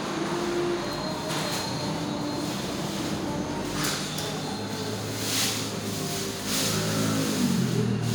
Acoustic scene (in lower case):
restaurant